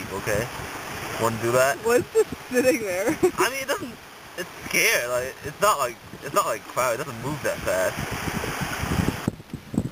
Man and woman talking while water is streaming